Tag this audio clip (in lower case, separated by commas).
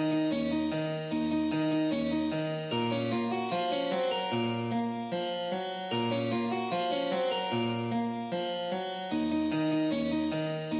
harpsichord, music